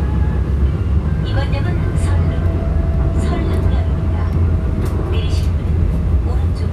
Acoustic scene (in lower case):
subway train